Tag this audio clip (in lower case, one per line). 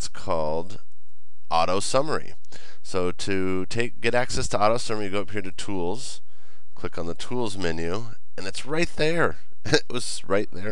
speech